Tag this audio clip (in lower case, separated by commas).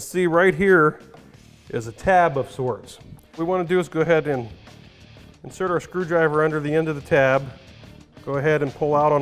speech, music